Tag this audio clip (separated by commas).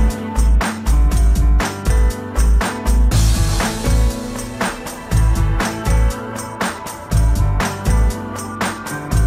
Music